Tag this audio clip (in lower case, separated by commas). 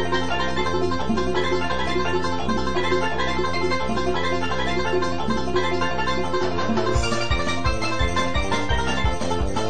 funny music, music